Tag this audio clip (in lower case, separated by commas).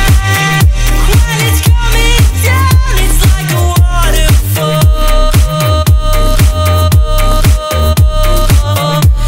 electronic dance music, music, electronic music